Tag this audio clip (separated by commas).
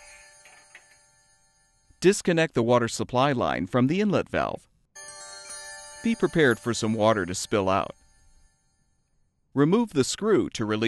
Speech, Music